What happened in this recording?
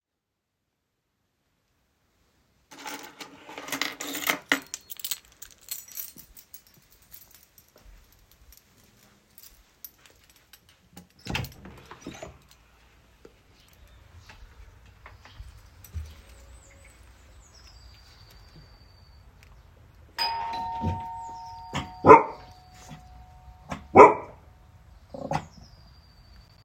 I pick up keys from a table and open the main door to my home. From outside, I ring the bell, which our dogs do not find amusing.